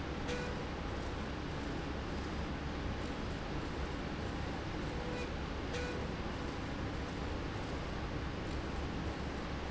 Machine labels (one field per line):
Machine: slide rail